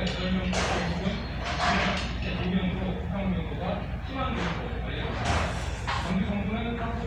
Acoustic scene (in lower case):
restaurant